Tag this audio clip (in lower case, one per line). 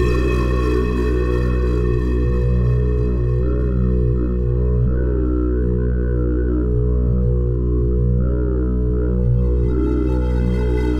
musical instrument
music
synthesizer